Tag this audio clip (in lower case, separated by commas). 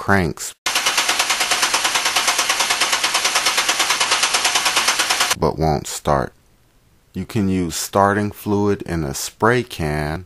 car engine starting